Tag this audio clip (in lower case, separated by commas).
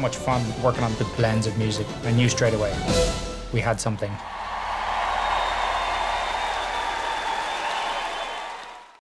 music, speech